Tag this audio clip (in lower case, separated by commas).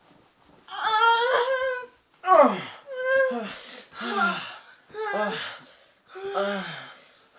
human voice